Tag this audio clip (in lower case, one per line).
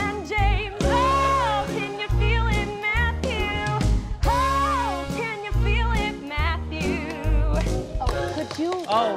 music
song